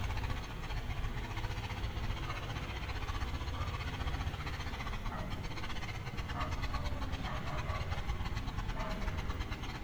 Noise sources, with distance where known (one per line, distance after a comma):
engine of unclear size